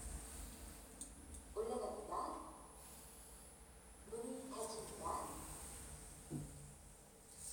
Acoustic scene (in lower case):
elevator